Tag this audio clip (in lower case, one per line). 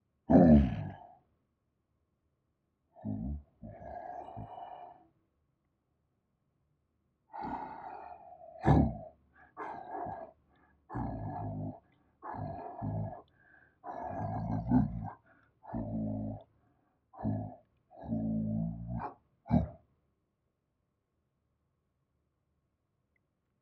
growling
animal